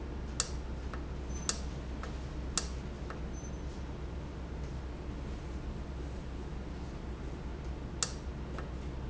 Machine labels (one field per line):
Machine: valve